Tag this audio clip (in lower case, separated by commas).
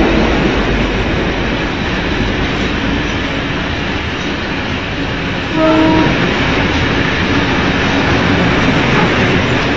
railroad car, vehicle, rail transport, train wheels squealing, train